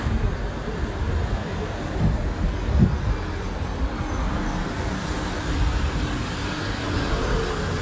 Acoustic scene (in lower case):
street